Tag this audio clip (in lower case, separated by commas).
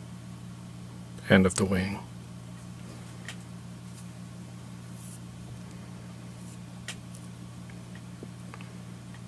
speech